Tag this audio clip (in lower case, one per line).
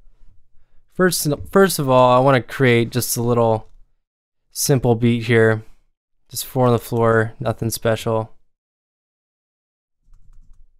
speech